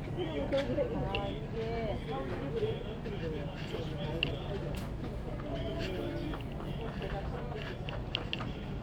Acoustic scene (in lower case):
crowded indoor space